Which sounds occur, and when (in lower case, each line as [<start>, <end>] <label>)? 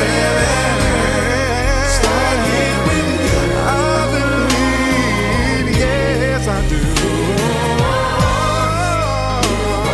[0.01, 9.93] music
[0.04, 9.93] male speech